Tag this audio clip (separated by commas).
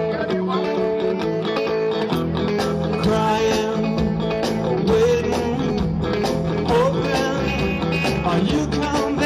Music